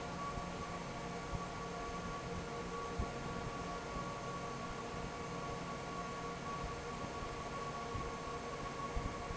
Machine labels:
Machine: fan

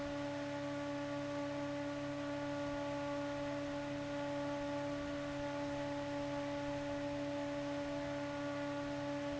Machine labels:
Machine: fan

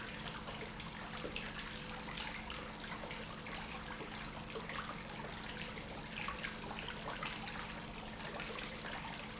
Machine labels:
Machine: pump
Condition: normal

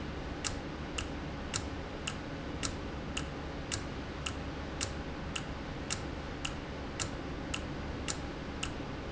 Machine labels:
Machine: valve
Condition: normal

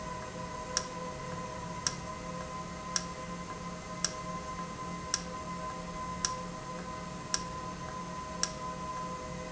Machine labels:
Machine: valve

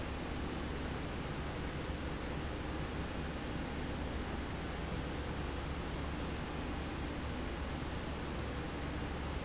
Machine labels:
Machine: slide rail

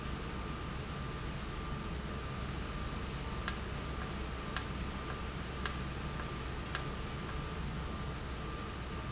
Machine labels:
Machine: valve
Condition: normal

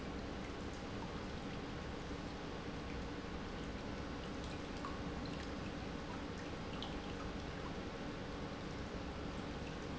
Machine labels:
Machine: pump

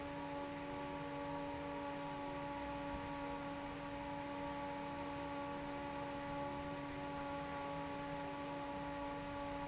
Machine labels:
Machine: fan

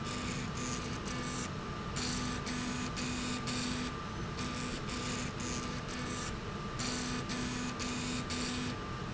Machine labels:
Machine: slide rail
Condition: abnormal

